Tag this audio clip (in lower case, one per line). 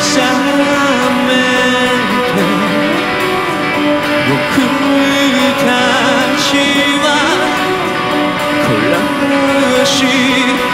music